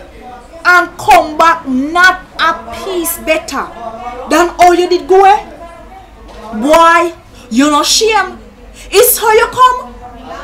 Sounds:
Speech

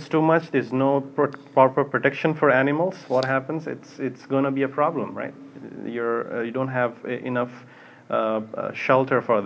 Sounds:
Speech

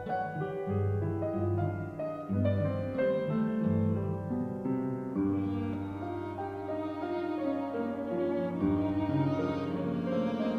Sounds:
Music, Classical music, Keyboard (musical), Cello, Musical instrument, Bowed string instrument, Piano

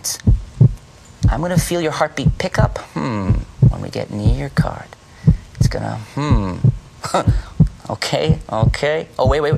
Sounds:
heartbeat

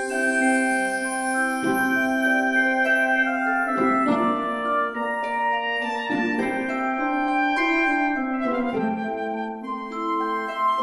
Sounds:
Mallet percussion, Marimba, Glockenspiel

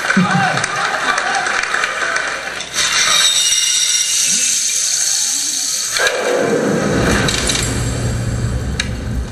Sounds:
Echo

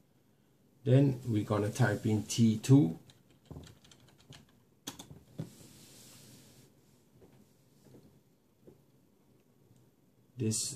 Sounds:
Typing, Computer keyboard

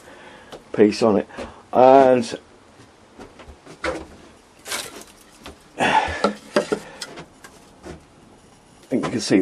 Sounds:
Speech

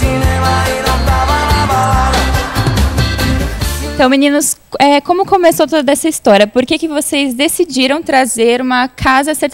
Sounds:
Music, Speech

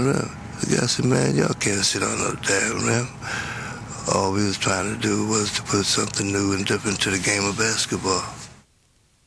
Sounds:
Speech

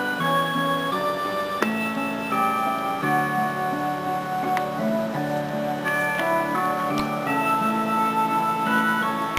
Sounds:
Music

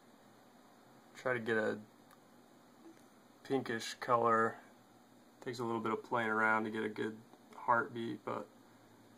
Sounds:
Speech

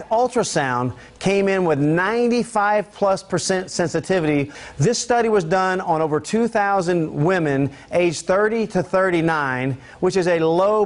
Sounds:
Speech

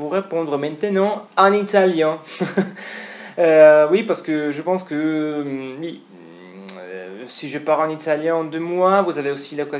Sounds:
Speech

